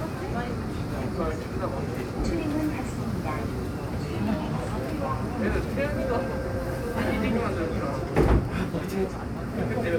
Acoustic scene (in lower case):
subway train